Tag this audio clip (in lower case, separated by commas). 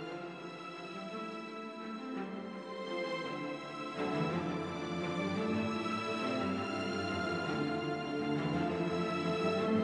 music